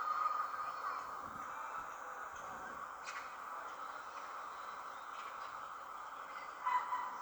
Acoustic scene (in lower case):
park